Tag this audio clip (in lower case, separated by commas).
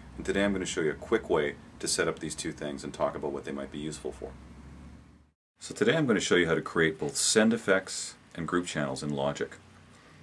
speech